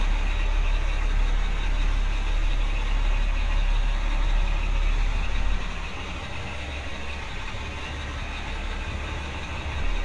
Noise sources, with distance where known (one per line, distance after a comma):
large-sounding engine